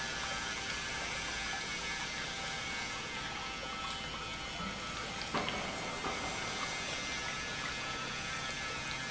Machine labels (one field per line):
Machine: pump